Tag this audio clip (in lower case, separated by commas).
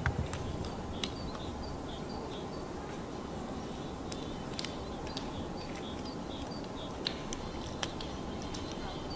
woodpecker pecking tree